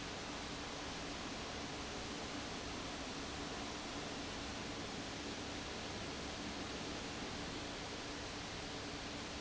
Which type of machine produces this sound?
fan